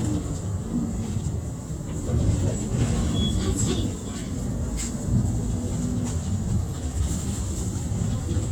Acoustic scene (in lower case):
bus